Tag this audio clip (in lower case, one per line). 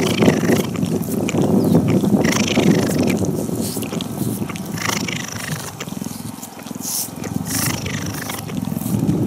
cat purring